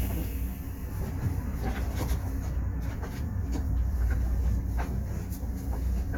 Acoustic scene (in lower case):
bus